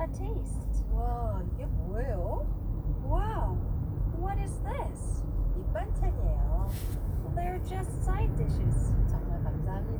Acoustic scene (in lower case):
car